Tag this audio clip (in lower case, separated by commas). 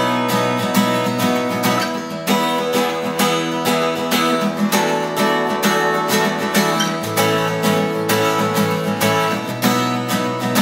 guitar, strum, acoustic guitar, plucked string instrument, musical instrument, music